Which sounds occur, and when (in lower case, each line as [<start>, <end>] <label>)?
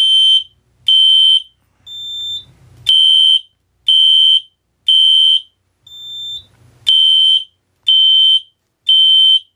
[0.00, 0.55] fire alarm
[0.00, 9.55] mechanisms
[0.85, 1.55] fire alarm
[1.84, 2.46] bleep
[2.14, 2.23] tick
[2.83, 3.58] fire alarm
[3.49, 3.60] tick
[3.81, 4.61] fire alarm
[4.82, 5.56] fire alarm
[5.85, 6.45] bleep
[6.49, 6.61] tick
[6.84, 7.57] fire alarm
[7.71, 7.81] tick
[7.83, 8.59] fire alarm
[8.56, 8.71] tick
[8.86, 9.55] fire alarm